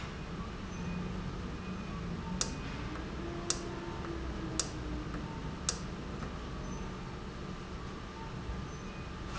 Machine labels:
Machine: valve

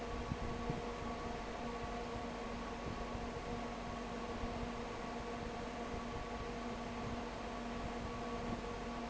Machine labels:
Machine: fan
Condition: abnormal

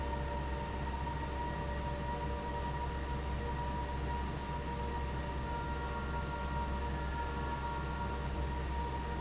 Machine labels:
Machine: fan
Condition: abnormal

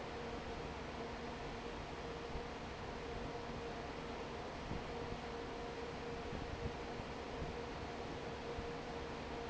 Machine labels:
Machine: fan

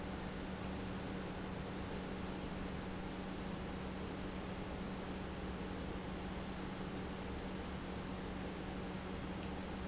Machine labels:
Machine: pump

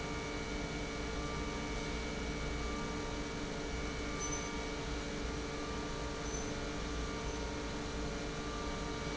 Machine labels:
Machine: pump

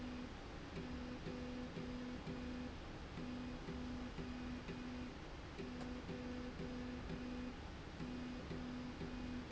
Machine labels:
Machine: slide rail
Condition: normal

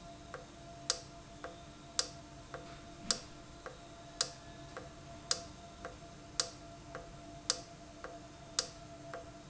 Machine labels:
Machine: valve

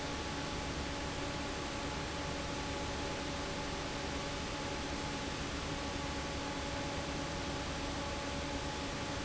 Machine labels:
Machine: fan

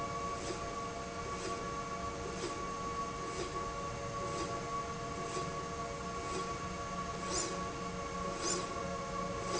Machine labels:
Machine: slide rail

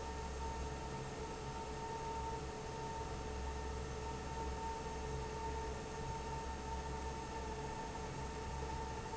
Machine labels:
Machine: fan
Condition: normal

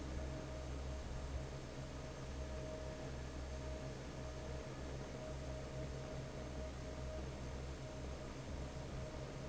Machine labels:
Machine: fan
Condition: normal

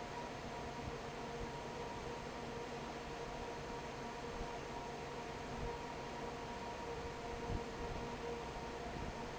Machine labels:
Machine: fan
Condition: normal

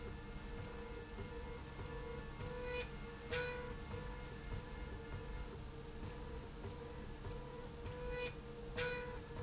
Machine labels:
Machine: slide rail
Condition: normal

